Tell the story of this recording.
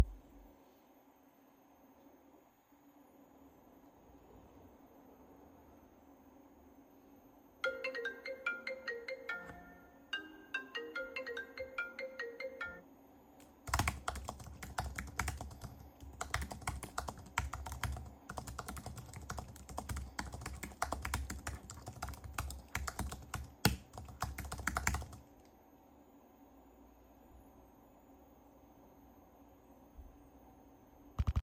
The phone was on my desk while I was working. A second phone started ringing, then I started typing on my keyboard.